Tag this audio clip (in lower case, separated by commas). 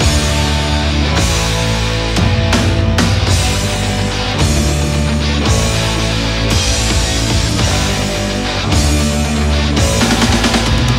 music, progressive rock